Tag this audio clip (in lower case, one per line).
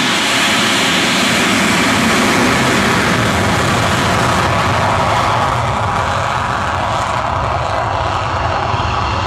outside, rural or natural
aircraft
vehicle
aircraft engine
fixed-wing aircraft